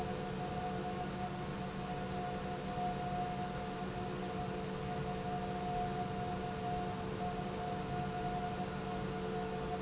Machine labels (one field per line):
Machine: pump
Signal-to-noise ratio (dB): -6 dB